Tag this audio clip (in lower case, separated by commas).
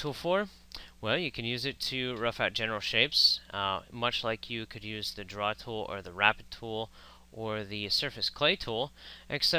speech